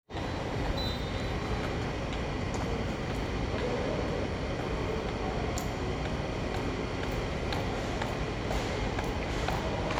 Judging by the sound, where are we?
in a subway station